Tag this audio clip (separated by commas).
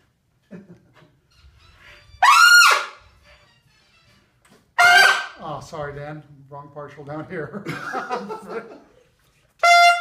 Music, Speech